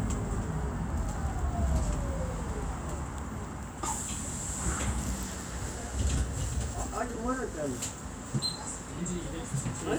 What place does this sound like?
bus